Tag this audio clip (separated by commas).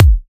Bass drum, Percussion, Drum, Musical instrument, Music